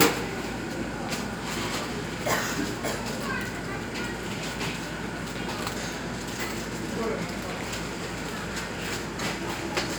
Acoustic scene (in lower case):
cafe